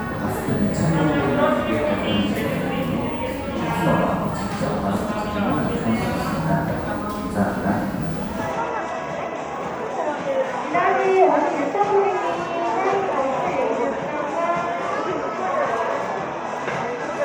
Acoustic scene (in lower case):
cafe